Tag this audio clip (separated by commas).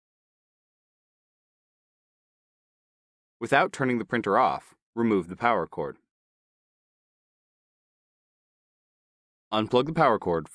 Speech